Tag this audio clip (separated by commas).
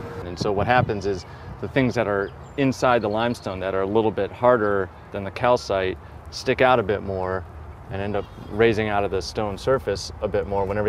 Speech